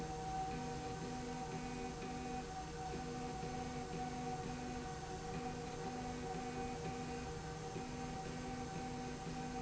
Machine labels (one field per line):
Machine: slide rail